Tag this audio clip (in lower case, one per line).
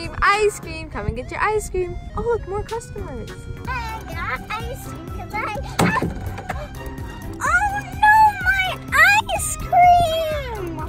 ice cream truck